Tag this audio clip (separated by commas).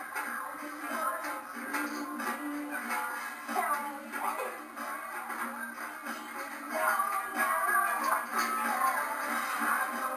Music